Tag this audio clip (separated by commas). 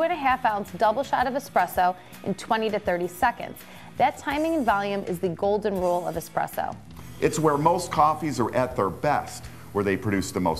Music, Speech